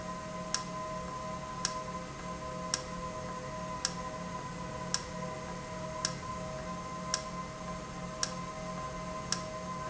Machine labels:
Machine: valve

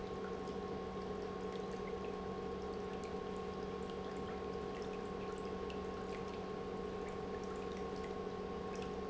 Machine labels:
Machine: pump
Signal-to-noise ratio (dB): 6 dB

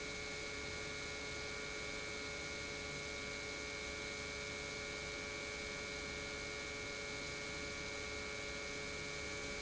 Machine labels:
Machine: pump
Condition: normal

